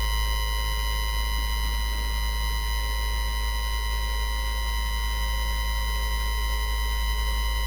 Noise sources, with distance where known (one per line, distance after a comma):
unidentified alert signal, near